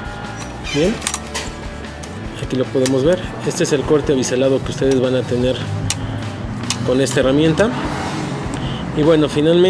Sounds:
speech, music

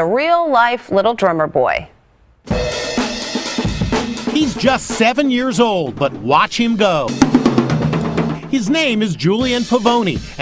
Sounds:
speech, music

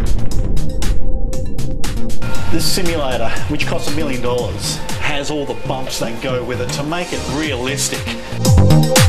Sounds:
electronica, speech, music

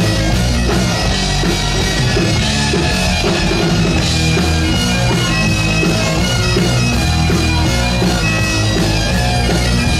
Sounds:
playing bagpipes, music, bagpipes, rock music

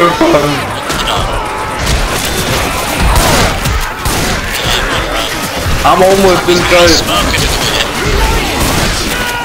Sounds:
speech

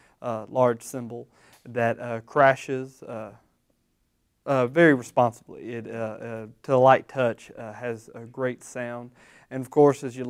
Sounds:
speech

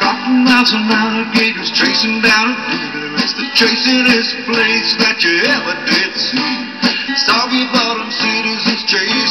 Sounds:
music

